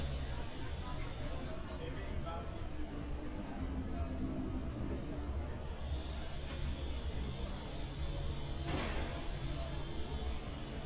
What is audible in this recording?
engine of unclear size, person or small group talking